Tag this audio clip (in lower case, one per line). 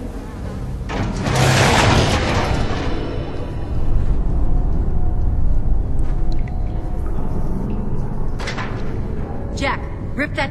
music
speech